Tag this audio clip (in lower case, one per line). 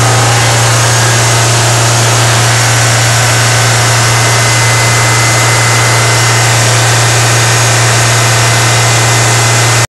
static